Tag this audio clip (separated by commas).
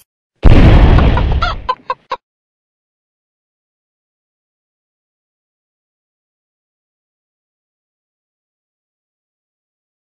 Silence